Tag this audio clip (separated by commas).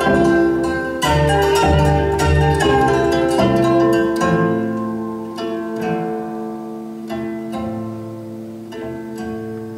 Cello, Guitar, Music